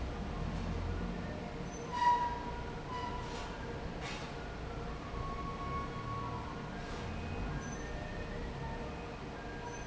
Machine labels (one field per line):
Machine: fan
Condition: normal